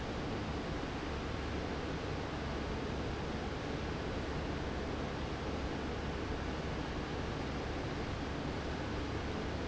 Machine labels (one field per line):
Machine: fan